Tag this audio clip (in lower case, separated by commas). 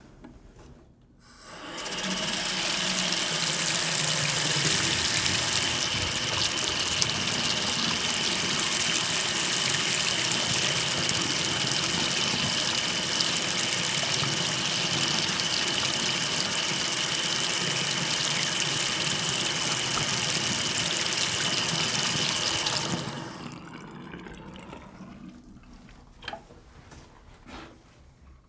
sink (filling or washing), home sounds, water tap